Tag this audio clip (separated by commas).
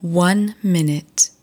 Female speech, Speech, Human voice